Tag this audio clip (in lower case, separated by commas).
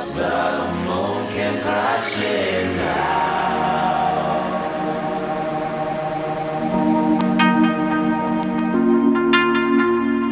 music